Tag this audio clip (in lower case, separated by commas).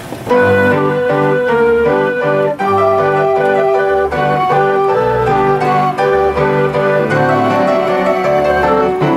music, musical instrument, keyboard (musical)